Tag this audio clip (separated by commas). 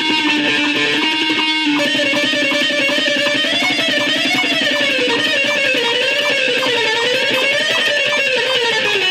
Plucked string instrument, Strum, Guitar, Electric guitar, Musical instrument, Music